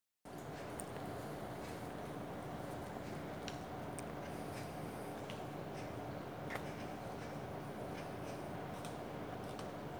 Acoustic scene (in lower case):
park